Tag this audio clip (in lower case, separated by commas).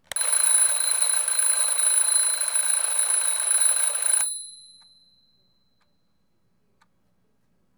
alarm